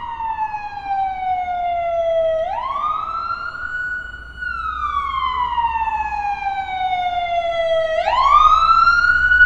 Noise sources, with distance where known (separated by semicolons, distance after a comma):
siren, near